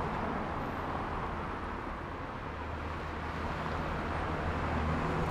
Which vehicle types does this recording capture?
car, bus